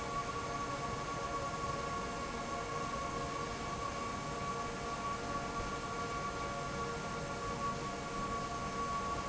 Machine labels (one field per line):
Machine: fan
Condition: normal